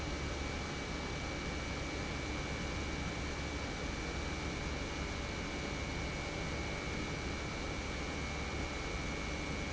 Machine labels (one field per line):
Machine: pump